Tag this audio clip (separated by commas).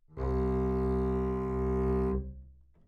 Musical instrument, Music, Bowed string instrument